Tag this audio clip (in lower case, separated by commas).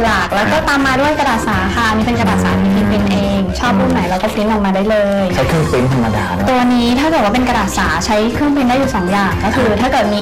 music, speech